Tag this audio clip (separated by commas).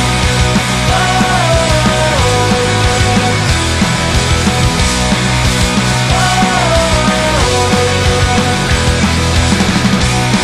Grunge